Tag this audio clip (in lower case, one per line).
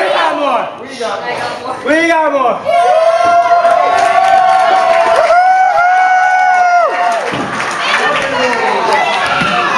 speech